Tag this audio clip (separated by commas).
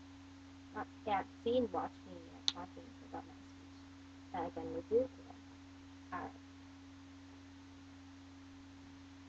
woman speaking, Speech, Narration